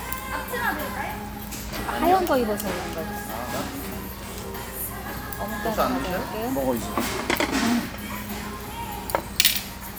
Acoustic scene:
restaurant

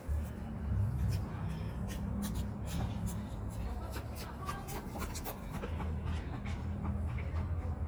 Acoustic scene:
residential area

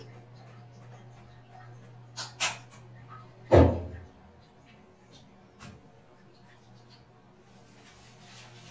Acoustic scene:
restroom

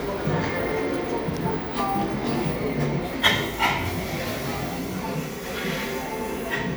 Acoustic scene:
cafe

